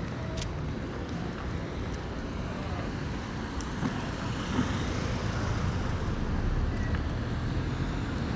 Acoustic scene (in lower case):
residential area